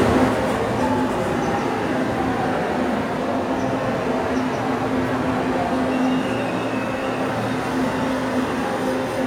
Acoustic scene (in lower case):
subway station